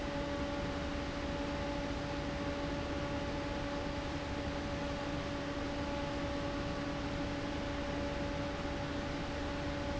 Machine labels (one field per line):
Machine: fan